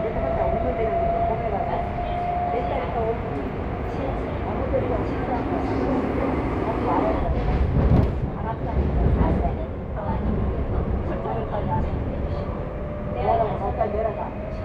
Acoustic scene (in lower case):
subway train